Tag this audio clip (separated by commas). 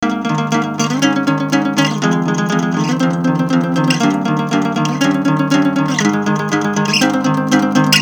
Plucked string instrument, Music, Acoustic guitar, Musical instrument, Guitar